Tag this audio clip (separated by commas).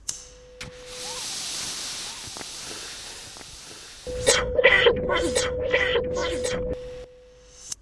Respiratory sounds, Breathing